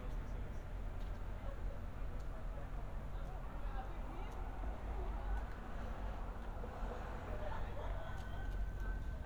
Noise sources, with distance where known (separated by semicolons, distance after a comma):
person or small group talking, far